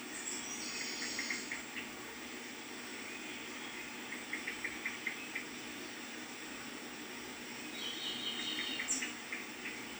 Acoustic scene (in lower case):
park